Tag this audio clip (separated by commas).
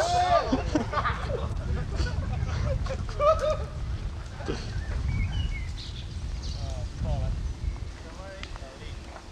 tweet, Gunshot, Bird vocalization, Bird